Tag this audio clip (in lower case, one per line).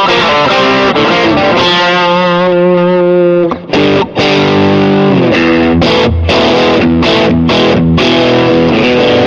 music
plucked string instrument
guitar
musical instrument
distortion